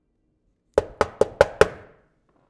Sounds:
knock, door, home sounds, wood

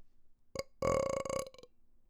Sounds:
burping

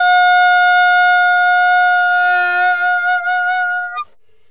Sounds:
musical instrument, woodwind instrument, music

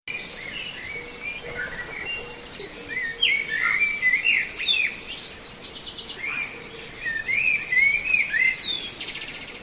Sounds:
bird, animal, wild animals

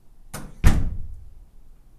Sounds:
home sounds, door, slam

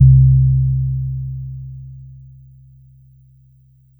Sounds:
musical instrument, music, keyboard (musical), piano

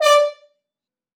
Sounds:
music, musical instrument, brass instrument

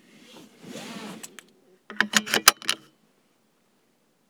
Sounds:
car, motor vehicle (road), vehicle

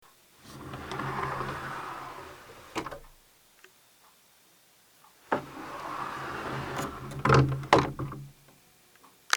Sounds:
door, sliding door, home sounds

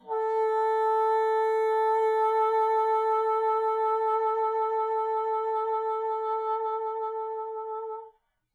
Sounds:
woodwind instrument, music, musical instrument

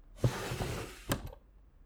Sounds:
drawer open or close, home sounds

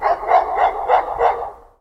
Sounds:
animal, pets, dog, bark

